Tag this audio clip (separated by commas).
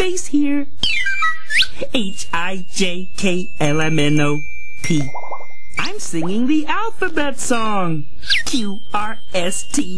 Music, Speech, Singing